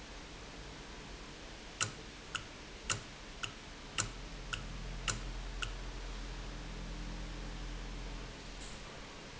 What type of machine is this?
valve